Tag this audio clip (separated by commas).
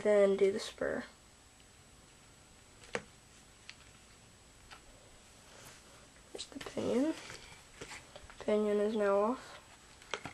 Speech